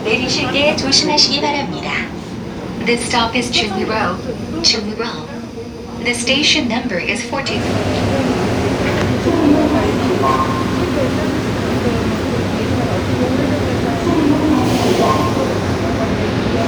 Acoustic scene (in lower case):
subway train